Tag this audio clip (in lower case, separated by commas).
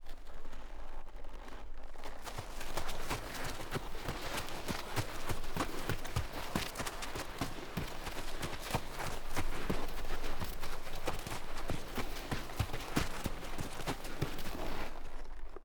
livestock, animal